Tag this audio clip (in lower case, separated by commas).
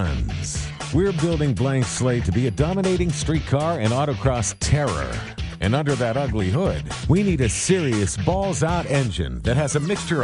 music, speech